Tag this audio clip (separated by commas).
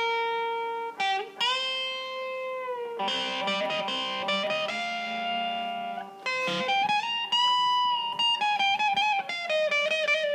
Tapping (guitar technique)